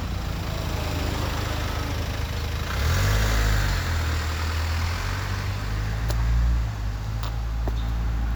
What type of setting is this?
street